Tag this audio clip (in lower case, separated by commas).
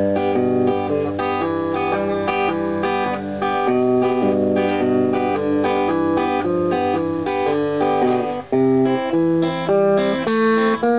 musical instrument, music, plucked string instrument, guitar